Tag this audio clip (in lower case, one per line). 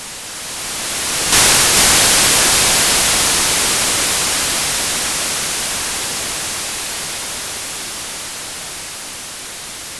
hiss